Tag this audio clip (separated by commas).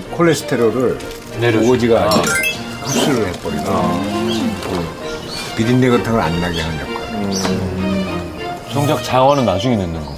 Speech, Music